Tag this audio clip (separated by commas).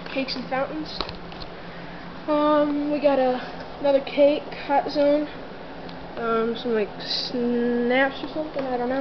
Speech